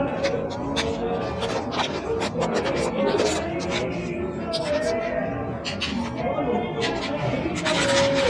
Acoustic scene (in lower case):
cafe